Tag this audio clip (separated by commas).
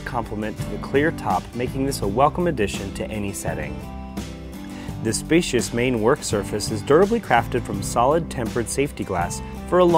Speech, Music